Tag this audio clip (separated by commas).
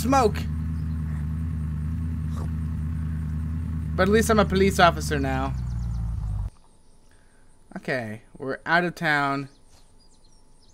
Speech